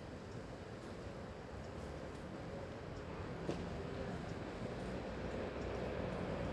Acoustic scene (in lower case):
street